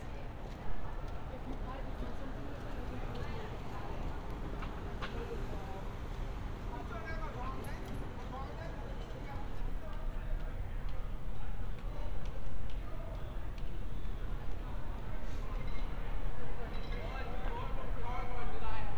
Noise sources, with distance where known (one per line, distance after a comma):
person or small group talking